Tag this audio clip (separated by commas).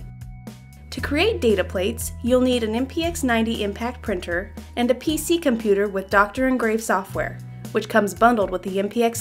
Speech, Music